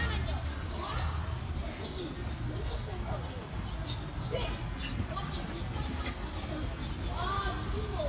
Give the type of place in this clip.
park